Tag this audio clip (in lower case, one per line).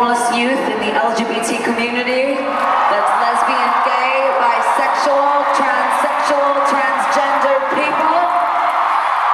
speech